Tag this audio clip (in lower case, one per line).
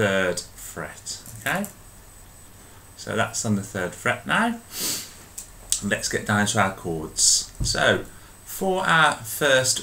speech